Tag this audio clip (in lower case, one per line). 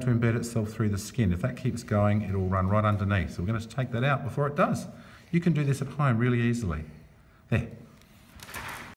speech